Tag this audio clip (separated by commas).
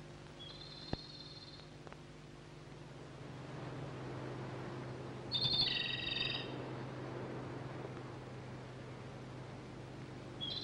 Bird, tweet, bird song